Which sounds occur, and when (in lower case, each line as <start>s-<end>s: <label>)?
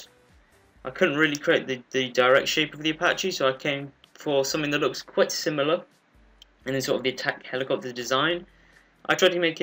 0.0s-9.6s: background noise
0.0s-9.6s: music
0.8s-3.9s: male speech
1.3s-1.4s: clicking
4.0s-4.0s: clicking
4.1s-5.8s: male speech
6.4s-6.4s: clicking
6.6s-8.4s: male speech
9.0s-9.6s: male speech